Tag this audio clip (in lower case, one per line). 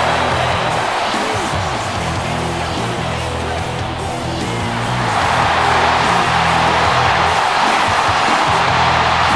music
speech